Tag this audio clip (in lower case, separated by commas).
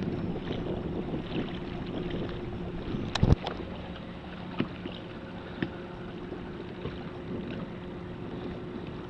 boat, vehicle, rowboat